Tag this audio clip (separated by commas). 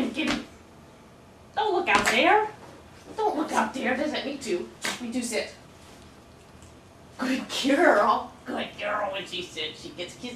Speech